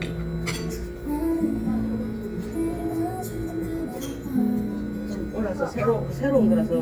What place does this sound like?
crowded indoor space